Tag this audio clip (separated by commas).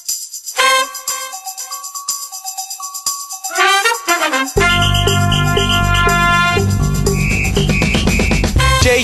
Exciting music, Music